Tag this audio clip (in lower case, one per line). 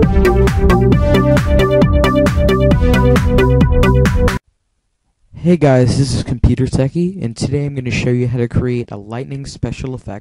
electronica